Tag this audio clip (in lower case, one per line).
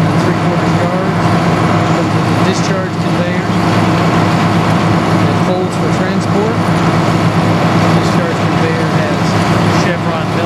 speech